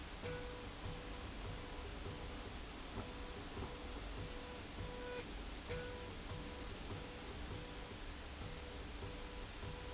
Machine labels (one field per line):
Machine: slide rail